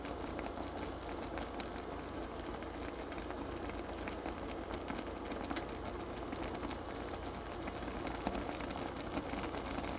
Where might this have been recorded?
in a kitchen